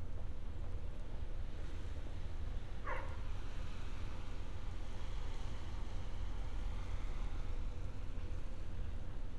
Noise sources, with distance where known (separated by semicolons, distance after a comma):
background noise